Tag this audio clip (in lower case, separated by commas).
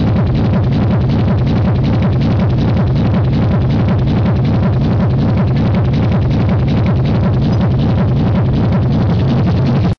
music, techno